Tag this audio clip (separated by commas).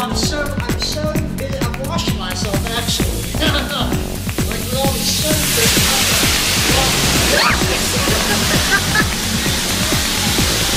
Speech, Music